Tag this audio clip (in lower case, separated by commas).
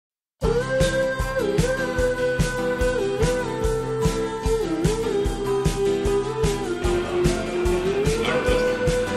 independent music, speech, music